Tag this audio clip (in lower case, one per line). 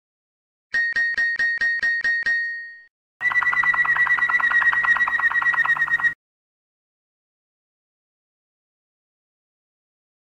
bird
domestic animals